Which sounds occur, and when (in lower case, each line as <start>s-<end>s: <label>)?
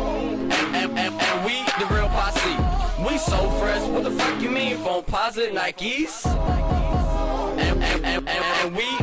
0.0s-9.0s: music
0.4s-2.6s: male singing
2.9s-6.1s: male singing
7.5s-9.0s: male singing